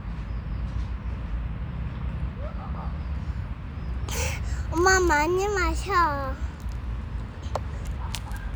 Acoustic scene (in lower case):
residential area